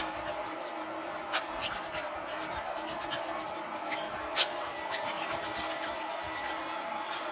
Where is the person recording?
in a restroom